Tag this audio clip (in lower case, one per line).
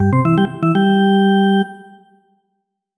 organ
keyboard (musical)
musical instrument
music